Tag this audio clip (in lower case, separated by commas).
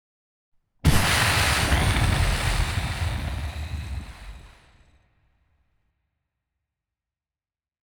boom, explosion